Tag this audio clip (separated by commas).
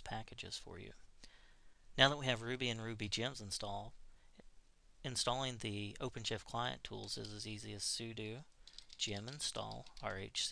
Speech